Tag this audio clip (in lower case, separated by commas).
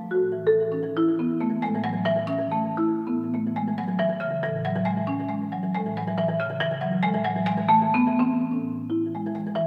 xylophone, music